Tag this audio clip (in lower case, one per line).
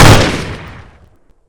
gunshot
explosion